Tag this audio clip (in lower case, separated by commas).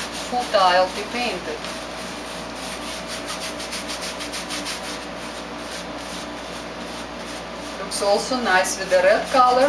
inside a small room, speech